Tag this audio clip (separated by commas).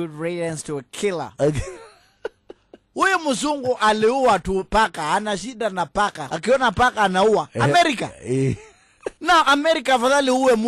Speech